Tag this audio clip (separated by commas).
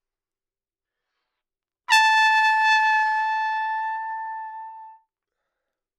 Music, Brass instrument, Trumpet, Musical instrument